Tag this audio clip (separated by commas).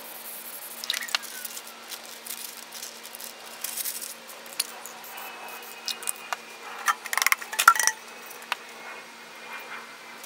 Spray